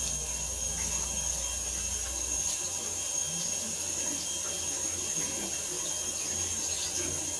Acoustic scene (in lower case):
restroom